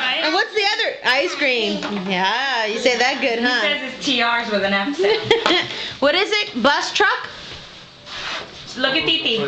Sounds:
speech

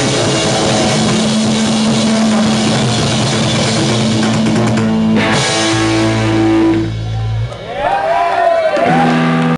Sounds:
snare drum, bass drum, drum kit, drum, rimshot, percussion

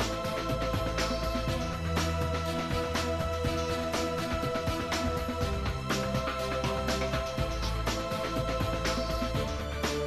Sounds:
music

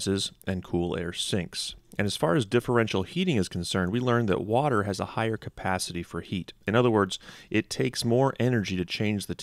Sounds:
speech

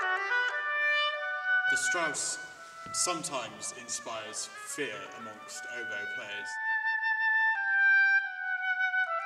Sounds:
playing oboe

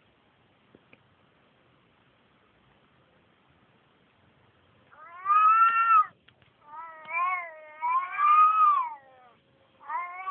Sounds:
domestic animals

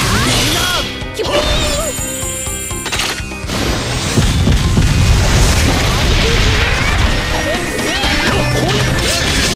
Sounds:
music, speech

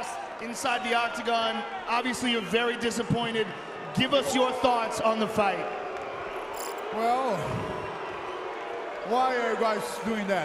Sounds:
people booing

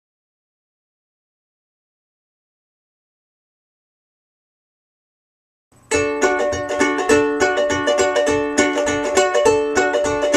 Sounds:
mandolin, ukulele, music

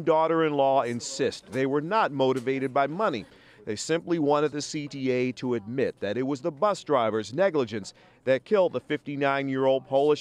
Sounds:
speech

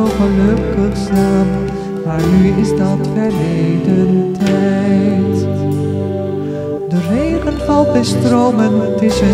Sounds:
music

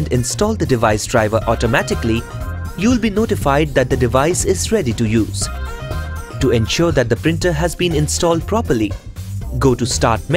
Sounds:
speech, music

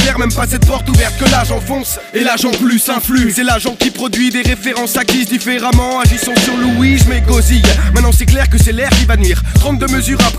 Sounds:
music, hip hop music, rapping

